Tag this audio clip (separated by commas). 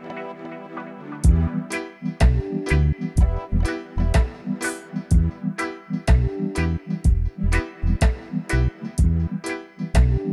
Sampler, Music